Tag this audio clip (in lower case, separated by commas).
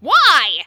yell, human voice, shout